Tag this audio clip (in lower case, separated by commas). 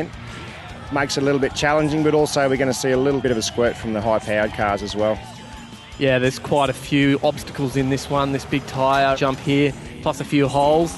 music, car, speech, vehicle